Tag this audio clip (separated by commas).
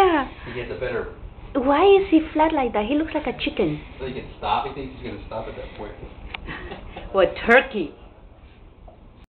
Speech